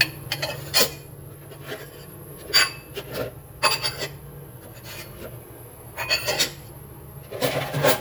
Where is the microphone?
in a kitchen